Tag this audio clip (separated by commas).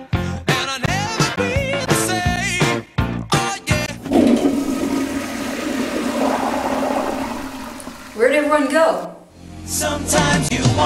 Music, Speech, inside a small room, Toilet flush